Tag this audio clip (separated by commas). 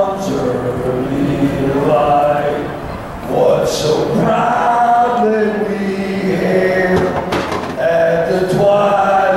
Male singing